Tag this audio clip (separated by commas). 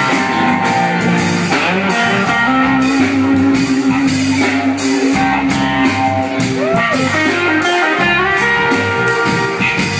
Rhythm and blues, Music, Funk